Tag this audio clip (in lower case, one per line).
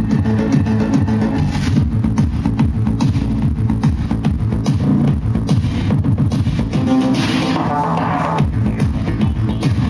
music
electronic music
disco